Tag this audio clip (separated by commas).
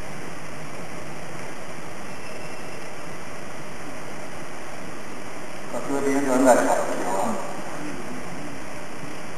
White noise, Speech